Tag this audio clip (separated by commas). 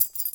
Domestic sounds, Keys jangling